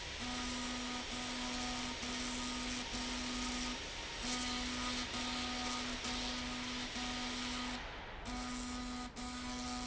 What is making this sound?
slide rail